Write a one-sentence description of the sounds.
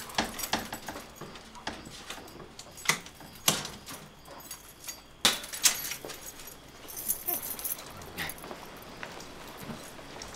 Someone with keys working on a door